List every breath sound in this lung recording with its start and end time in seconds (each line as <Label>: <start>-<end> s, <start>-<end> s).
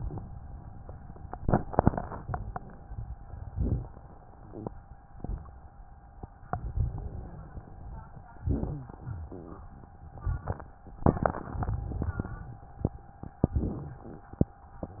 Inhalation: 1.15-3.43 s, 6.45-8.36 s, 10.14-10.85 s, 13.40-14.62 s
Exhalation: 3.46-5.05 s, 8.38-10.12 s, 10.90-13.40 s
Wheeze: 4.36-4.78 s, 6.61-7.75 s, 8.35-9.34 s
Crackles: 1.15-3.43 s, 10.12-10.89 s, 10.99-13.34 s, 13.39-14.62 s